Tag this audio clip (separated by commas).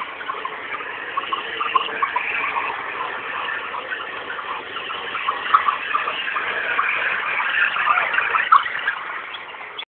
Car, Vehicle